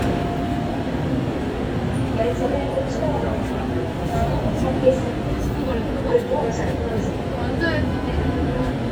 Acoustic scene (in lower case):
subway train